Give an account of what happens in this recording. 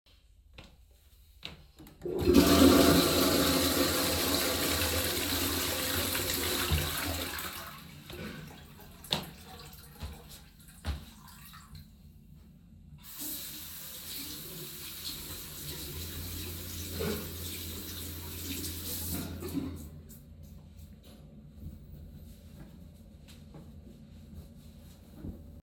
I flushed the toilet, went to the sink and washed my hands. Finally I dried my hands with a towel.